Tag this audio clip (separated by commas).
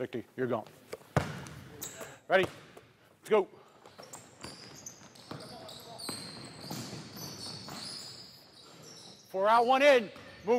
Speech, Basketball bounce